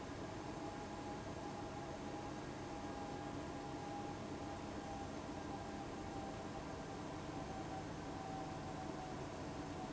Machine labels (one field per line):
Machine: fan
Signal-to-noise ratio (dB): 6 dB